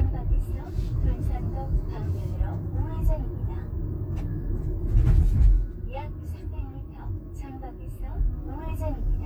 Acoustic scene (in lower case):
car